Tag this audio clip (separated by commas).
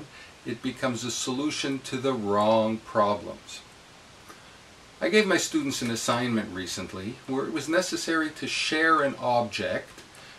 Speech